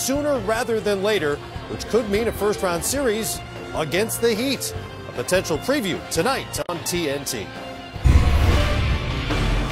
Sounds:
Music, Speech

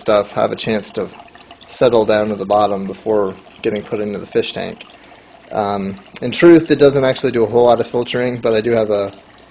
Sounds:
Pour, Speech

